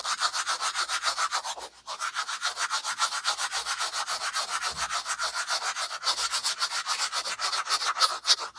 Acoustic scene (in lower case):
restroom